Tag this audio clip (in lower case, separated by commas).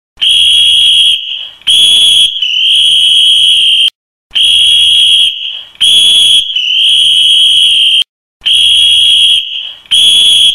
whistle